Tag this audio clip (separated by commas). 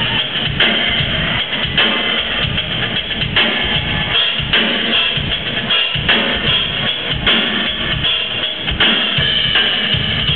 Drum kit, Music, Drum, Musical instrument, Bass drum